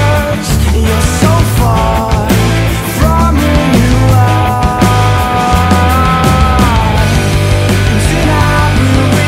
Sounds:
music, pop music

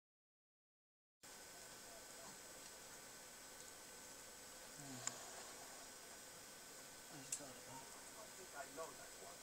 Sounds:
mandolin, music

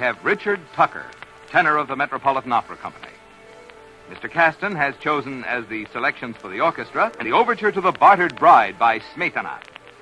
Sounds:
speech

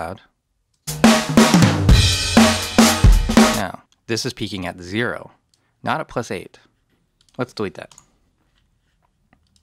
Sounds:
music, speech

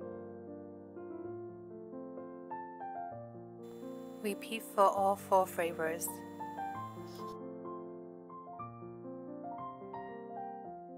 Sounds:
music, speech

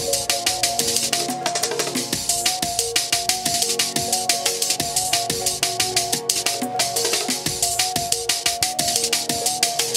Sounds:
disco, music

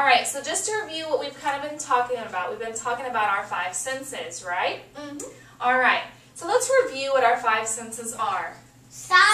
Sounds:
child speech, speech, inside a small room

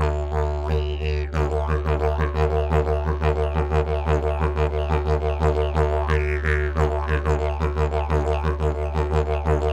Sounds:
playing didgeridoo

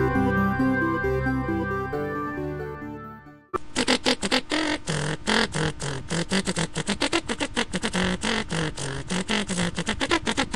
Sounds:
music

